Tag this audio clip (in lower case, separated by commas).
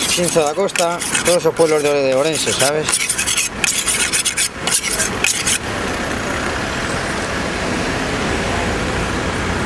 sharpen knife